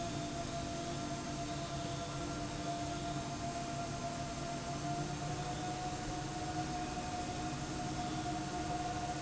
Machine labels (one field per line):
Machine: slide rail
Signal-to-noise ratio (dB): -6 dB